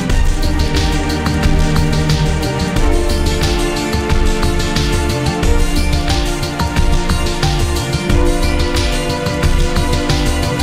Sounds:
Video game music, Music

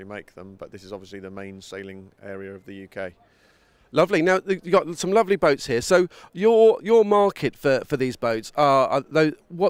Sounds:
Speech

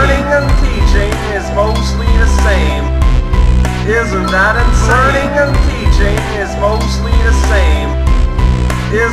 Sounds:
Music, Speech

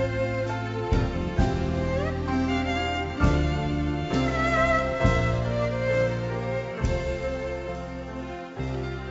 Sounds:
Music

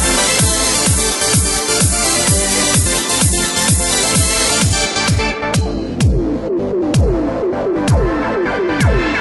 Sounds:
Music

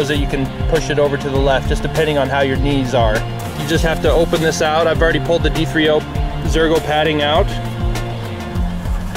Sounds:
Music, Speech

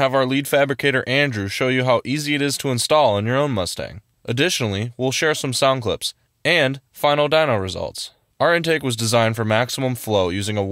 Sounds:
Speech

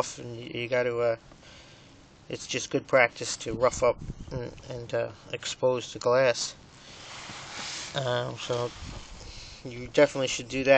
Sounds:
Speech

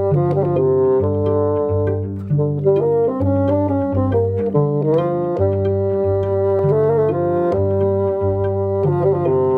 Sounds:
playing bassoon

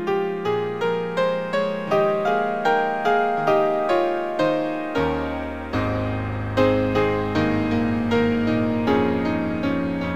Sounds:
Keyboard (musical), Music

